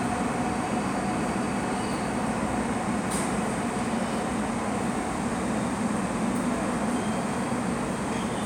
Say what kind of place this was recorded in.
subway station